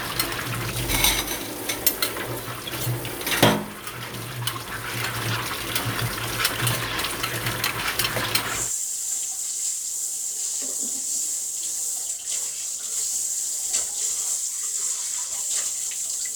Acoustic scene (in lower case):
kitchen